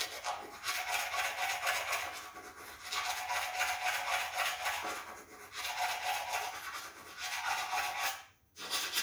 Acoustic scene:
restroom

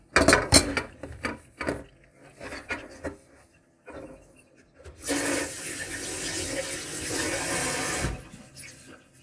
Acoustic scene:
kitchen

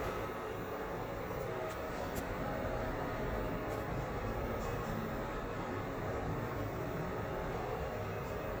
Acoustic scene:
elevator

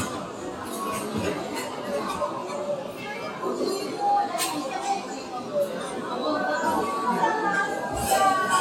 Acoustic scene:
restaurant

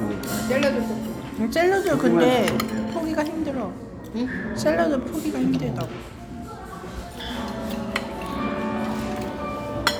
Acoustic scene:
restaurant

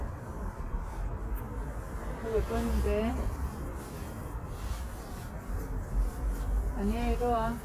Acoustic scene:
residential area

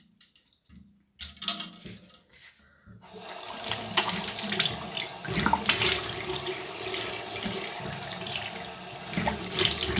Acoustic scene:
restroom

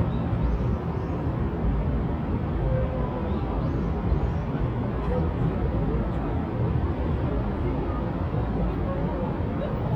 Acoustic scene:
park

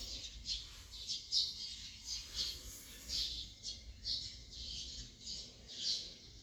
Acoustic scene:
park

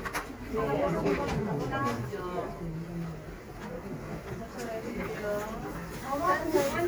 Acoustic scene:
crowded indoor space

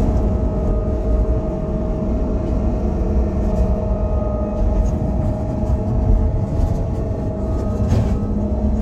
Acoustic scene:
bus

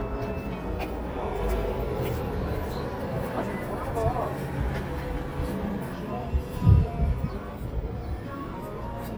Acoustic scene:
street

